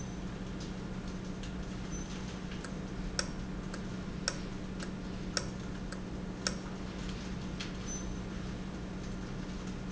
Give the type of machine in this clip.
valve